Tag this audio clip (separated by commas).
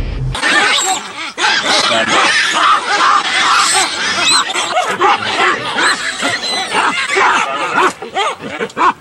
outside, rural or natural, Speech, Animal